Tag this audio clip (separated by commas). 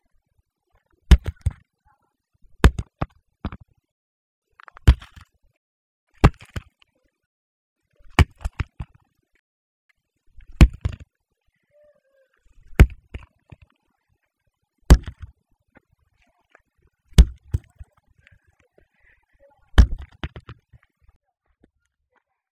thud